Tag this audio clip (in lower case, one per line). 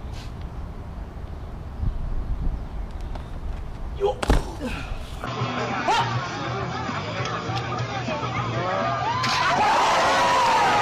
door slamming